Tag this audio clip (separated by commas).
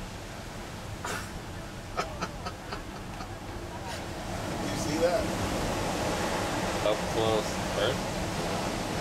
Speech